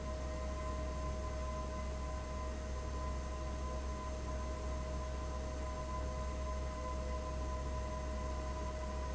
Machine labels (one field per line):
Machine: fan